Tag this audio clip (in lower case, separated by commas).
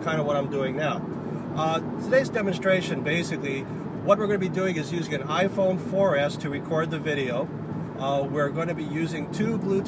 speech